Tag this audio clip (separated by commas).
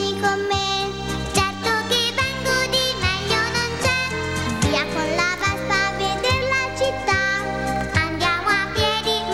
Music